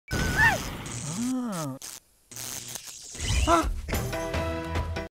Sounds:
music, speech

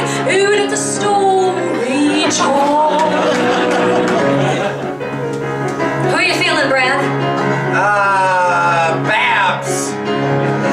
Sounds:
female singing

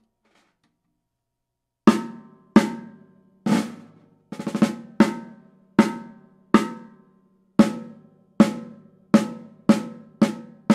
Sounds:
playing snare drum

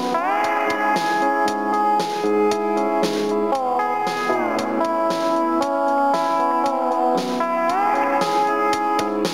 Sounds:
strum, guitar, electric guitar, music, musical instrument, plucked string instrument

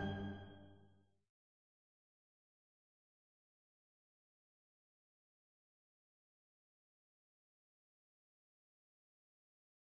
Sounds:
silence, music

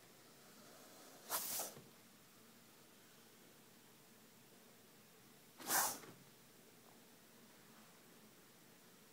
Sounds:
animal, snake, inside a small room

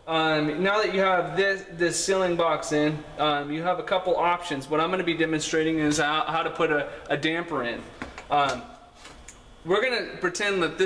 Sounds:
speech

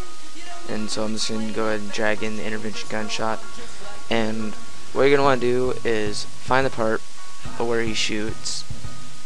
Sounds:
speech, sizzle, hiss, music

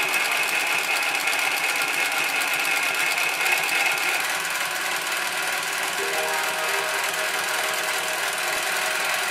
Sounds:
sewing machine, music, using sewing machines

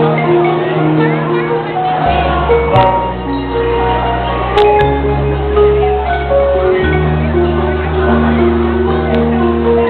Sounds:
percussion, music

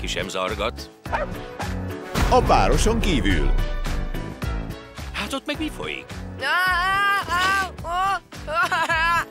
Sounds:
speech, yip, music

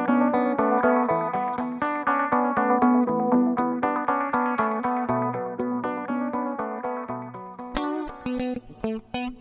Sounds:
music

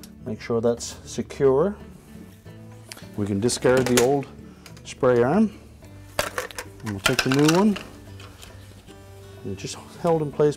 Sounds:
speech, music

